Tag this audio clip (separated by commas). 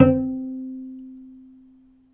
Music, Musical instrument, Bowed string instrument